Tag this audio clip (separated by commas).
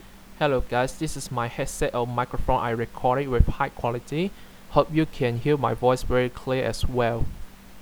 Human voice